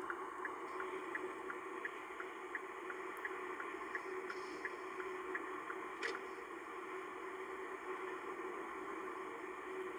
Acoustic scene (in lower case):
car